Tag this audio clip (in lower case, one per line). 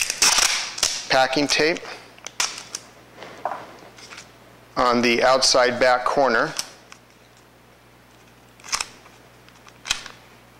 speech